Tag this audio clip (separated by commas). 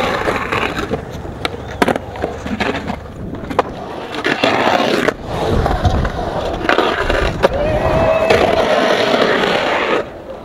skateboarding, Skateboard